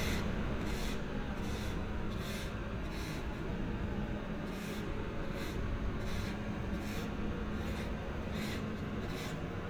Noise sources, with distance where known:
unidentified impact machinery, near

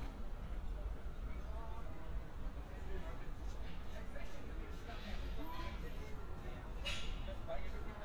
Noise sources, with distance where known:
person or small group talking, far

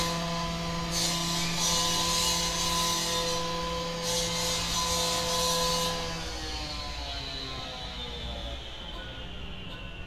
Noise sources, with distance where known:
small or medium rotating saw, near

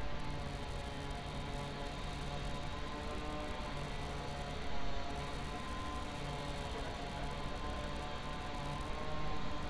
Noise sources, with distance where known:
small-sounding engine

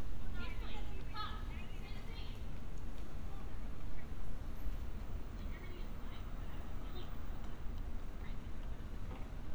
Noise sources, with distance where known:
person or small group shouting, far

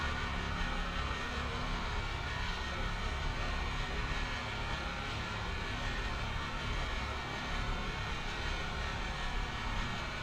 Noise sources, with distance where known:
large-sounding engine, near

